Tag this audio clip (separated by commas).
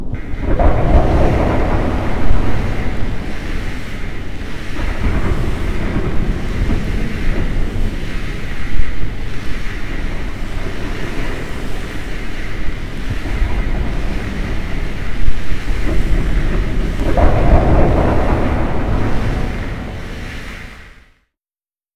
Thunderstorm, Thunder